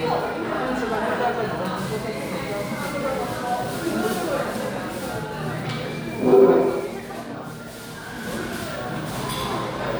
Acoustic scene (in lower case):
crowded indoor space